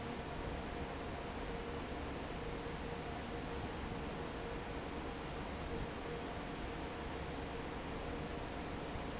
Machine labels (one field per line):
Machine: fan